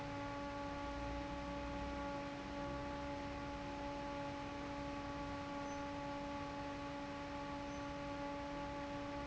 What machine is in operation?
fan